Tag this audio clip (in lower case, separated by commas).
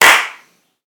hands, clapping